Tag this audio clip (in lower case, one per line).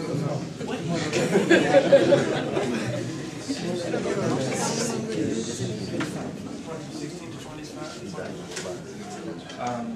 speech